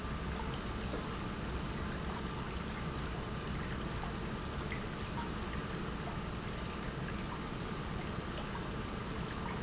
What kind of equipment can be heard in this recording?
pump